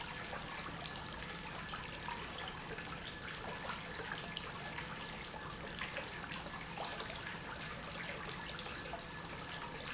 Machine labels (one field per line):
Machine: pump